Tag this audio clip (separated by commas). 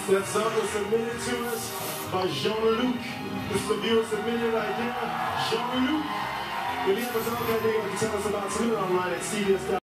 Music, Speech